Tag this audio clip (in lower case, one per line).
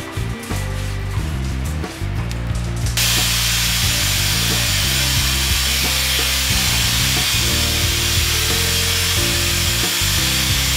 music